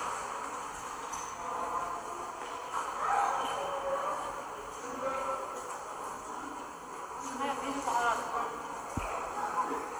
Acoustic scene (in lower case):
subway station